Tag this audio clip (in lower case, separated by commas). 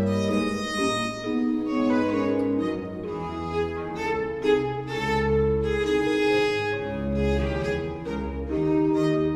fiddle, cello, bowed string instrument